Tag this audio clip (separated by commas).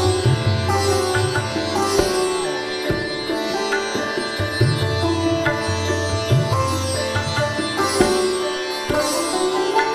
Sitar, Music